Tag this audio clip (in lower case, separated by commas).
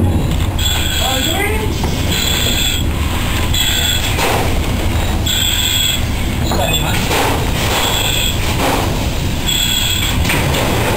fire, speech